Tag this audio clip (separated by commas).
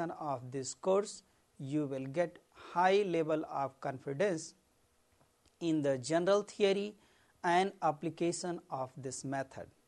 Speech